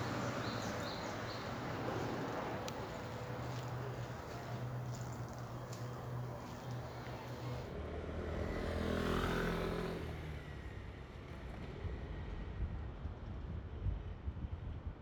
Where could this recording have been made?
in a residential area